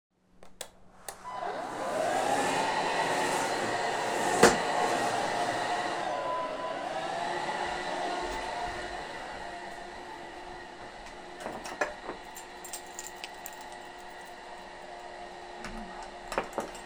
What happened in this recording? While vacuming, leaving the vacuum behind and getting keychains.